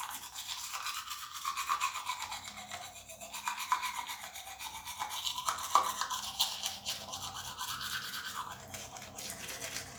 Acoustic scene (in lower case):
restroom